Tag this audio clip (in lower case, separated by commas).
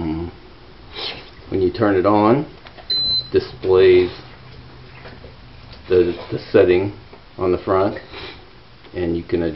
inside a small room, speech, air conditioning